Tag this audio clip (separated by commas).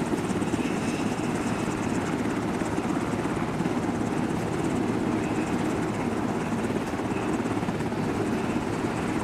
Vehicle, outside, rural or natural